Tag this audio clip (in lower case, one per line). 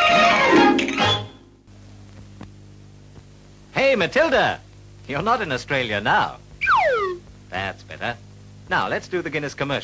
music
speech